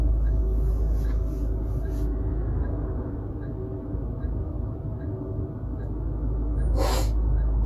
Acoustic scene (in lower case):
car